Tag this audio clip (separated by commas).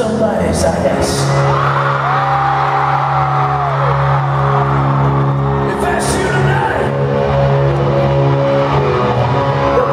Music, Speech